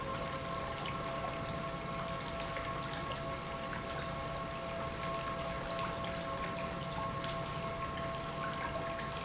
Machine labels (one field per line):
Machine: pump